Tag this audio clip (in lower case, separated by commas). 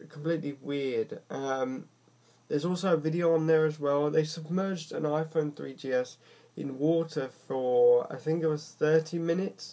speech